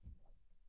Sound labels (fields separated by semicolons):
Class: cupboard; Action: opening; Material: wooden